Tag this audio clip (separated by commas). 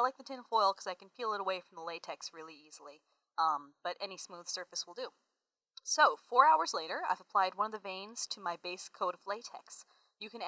monologue